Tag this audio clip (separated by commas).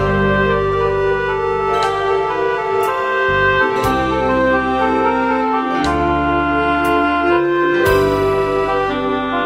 Music